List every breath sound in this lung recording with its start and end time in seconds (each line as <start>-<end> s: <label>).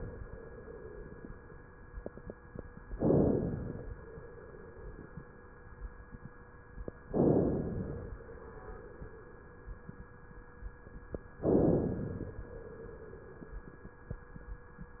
2.94-3.87 s: inhalation
7.08-8.08 s: inhalation
11.46-12.39 s: inhalation